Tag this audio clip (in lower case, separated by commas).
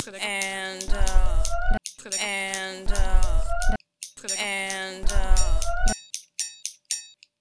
human voice, scissors, domestic sounds